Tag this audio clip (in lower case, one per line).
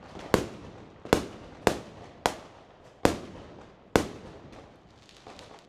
fireworks
explosion